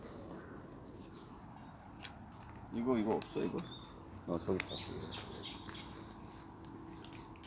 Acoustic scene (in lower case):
park